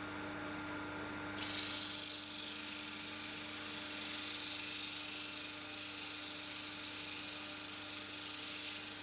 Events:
0.0s-9.0s: mechanisms
1.4s-9.0s: surface contact

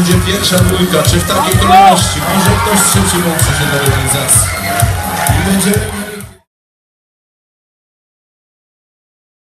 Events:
0.0s-4.5s: male speech
0.0s-6.4s: music
0.0s-6.5s: cheering
5.3s-6.4s: male speech

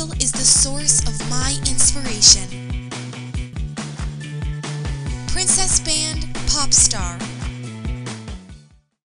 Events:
0.0s-2.5s: woman speaking
0.0s-9.0s: music
5.3s-7.3s: woman speaking

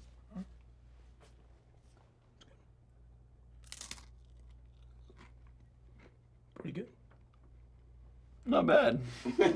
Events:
2.4s-2.4s: clicking
3.6s-4.1s: crunch
7.1s-7.5s: chewing
8.4s-9.0s: man speaking
9.0s-9.2s: breathing

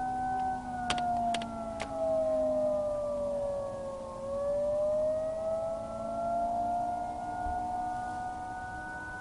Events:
0.0s-9.2s: civil defense siren
0.0s-9.2s: wind
0.3s-0.4s: clicking
0.9s-1.0s: generic impact sounds
1.1s-1.2s: clicking
1.3s-1.4s: generic impact sounds
1.8s-1.9s: generic impact sounds

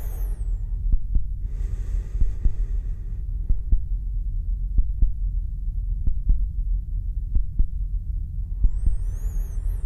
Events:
0.0s-9.8s: hum
8.6s-9.8s: sound effect
8.6s-8.9s: heart sounds

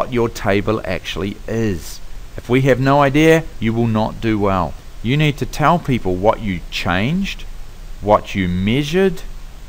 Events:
0.0s-9.6s: mechanisms
0.0s-2.0s: male speech
2.3s-4.7s: male speech
5.0s-7.4s: male speech
7.9s-9.2s: male speech

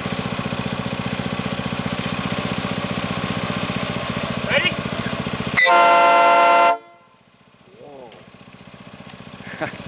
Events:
0.0s-9.8s: medium engine (mid frequency)
2.0s-2.2s: generic impact sounds
4.5s-4.7s: man speaking
5.6s-7.1s: train horn
7.7s-8.3s: train horn
8.1s-8.2s: tick
9.0s-9.2s: tick
9.4s-9.8s: chuckle

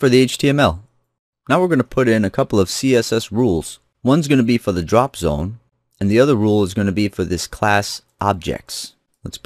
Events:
0.0s-0.8s: male speech
0.8s-0.9s: clicking
1.4s-3.8s: male speech
1.8s-1.9s: clicking
3.8s-3.8s: clicking
4.0s-5.6s: male speech
5.9s-8.0s: male speech
8.0s-8.1s: clicking
8.2s-9.0s: male speech
9.1s-9.2s: clicking
9.2s-9.4s: male speech

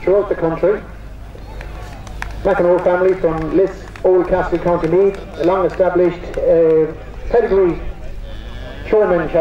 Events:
0.0s-9.4s: speech babble
0.0s-0.8s: man speaking
2.0s-6.9s: clapping
2.4s-6.9s: man speaking
7.2s-7.9s: man speaking
8.1s-9.4s: animal
8.7s-9.4s: man speaking

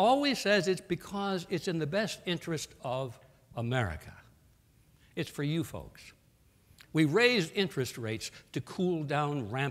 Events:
0.0s-2.7s: male speech
0.0s-9.7s: background noise
2.8s-3.1s: male speech
3.2s-3.4s: reverberation
3.5s-4.2s: male speech
5.0s-5.1s: breathing
5.1s-6.1s: male speech
6.7s-6.8s: clicking
6.9s-8.4s: male speech
8.5s-9.7s: male speech

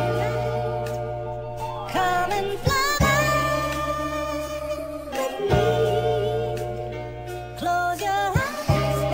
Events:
0.0s-0.5s: female singing
0.0s-9.1s: music
1.9s-6.6s: female singing
7.5s-9.1s: female singing

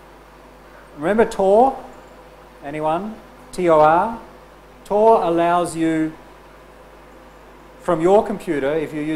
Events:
0.0s-9.1s: mechanisms
1.0s-1.8s: male speech
1.3s-1.3s: tick
2.6s-3.2s: male speech
3.5s-3.6s: tick
3.5s-4.3s: male speech
4.8s-4.9s: tick
4.8s-6.2s: male speech
7.8s-9.1s: male speech

